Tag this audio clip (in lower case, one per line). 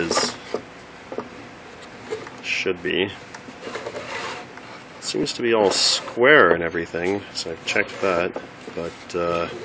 speech